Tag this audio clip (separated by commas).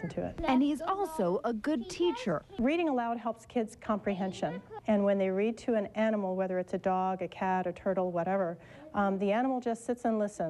Speech